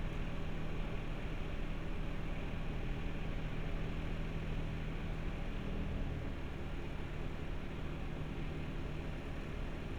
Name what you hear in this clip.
engine of unclear size